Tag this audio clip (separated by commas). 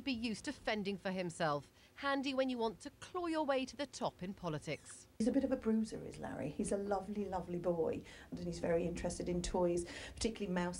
Speech